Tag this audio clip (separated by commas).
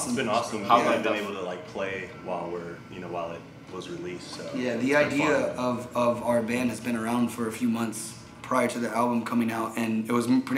Speech